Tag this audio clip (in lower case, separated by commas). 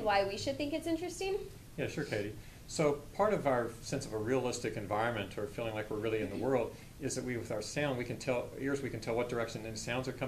speech